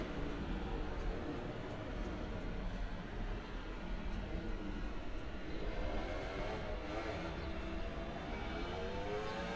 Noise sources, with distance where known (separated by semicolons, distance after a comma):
small-sounding engine